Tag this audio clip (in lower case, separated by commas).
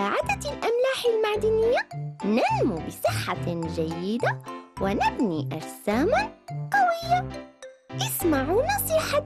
kid speaking, music, music for children, speech